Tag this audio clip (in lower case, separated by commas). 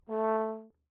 brass instrument, music, musical instrument